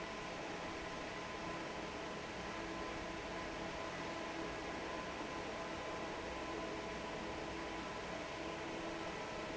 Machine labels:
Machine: fan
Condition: normal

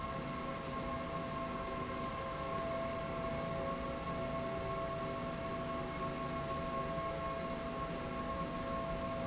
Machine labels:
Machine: slide rail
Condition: normal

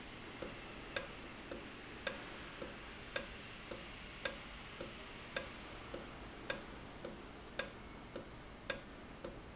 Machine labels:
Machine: valve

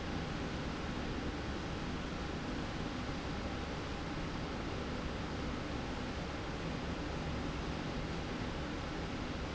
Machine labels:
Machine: slide rail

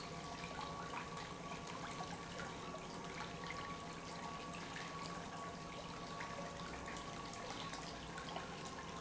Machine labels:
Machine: pump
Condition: normal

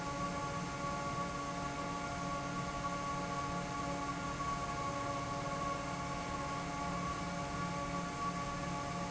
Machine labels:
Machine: fan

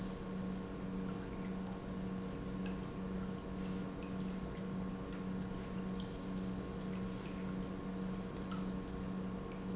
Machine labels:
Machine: pump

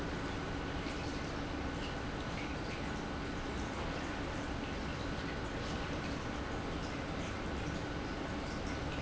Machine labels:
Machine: pump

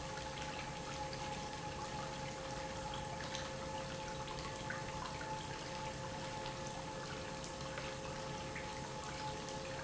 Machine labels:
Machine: pump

